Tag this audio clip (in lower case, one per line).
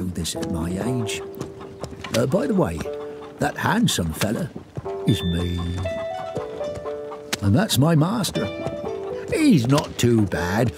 speech
music